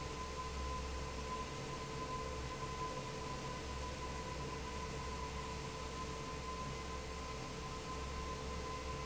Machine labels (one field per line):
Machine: fan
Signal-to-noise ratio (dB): 0 dB